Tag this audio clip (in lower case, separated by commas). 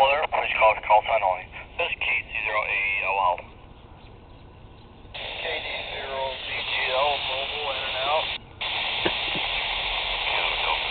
speech, radio